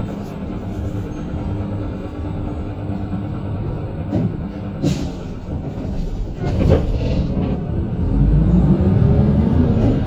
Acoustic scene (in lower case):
bus